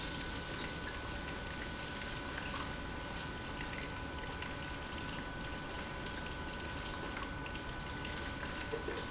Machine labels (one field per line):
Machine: pump